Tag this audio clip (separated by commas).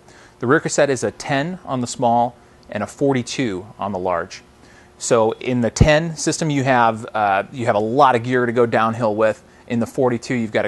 Speech